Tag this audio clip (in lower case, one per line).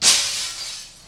glass
shatter